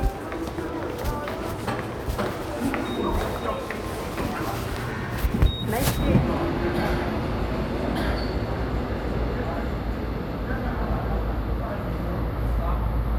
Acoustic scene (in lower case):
subway station